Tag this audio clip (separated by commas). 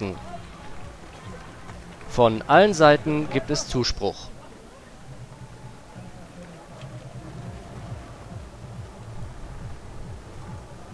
Run, Speech